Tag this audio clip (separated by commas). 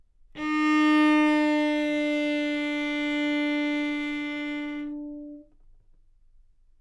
Bowed string instrument, Musical instrument, Music